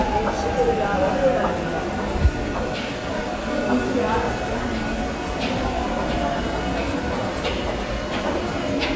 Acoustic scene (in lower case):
subway station